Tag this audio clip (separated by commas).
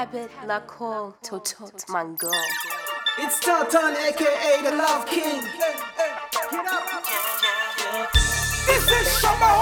Music, Speech